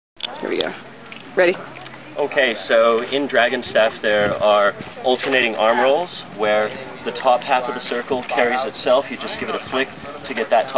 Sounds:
Speech

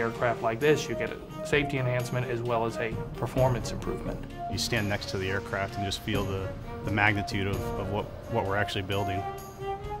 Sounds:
Speech, Jingle bell, Music

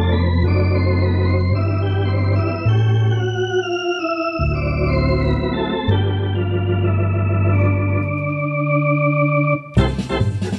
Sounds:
playing hammond organ

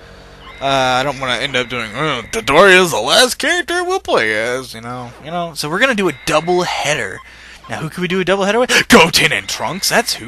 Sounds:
Speech

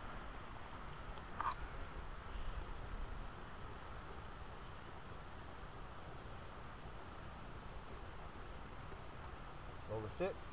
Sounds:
Speech

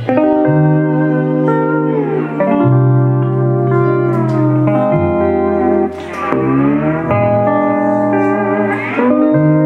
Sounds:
slide guitar

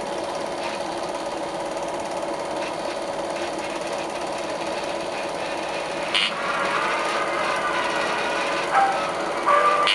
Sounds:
Reverberation

